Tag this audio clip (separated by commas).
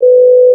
Alarm, Telephone